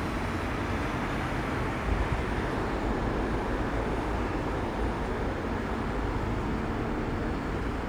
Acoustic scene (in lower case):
street